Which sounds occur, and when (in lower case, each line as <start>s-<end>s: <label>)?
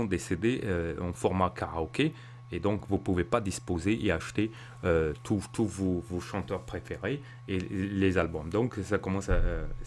0.0s-2.1s: male speech
0.0s-9.8s: mechanisms
2.1s-2.4s: breathing
2.5s-3.5s: male speech
3.6s-4.5s: male speech
4.5s-4.7s: breathing
4.8s-6.0s: male speech
6.1s-7.2s: male speech
7.2s-7.4s: breathing
7.4s-9.7s: male speech
7.5s-7.7s: clicking
8.5s-8.5s: clicking
9.8s-9.8s: male speech